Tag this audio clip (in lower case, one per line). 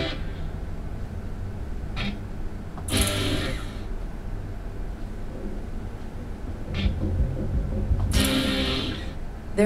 electric guitar
music
strum
guitar
plucked string instrument
musical instrument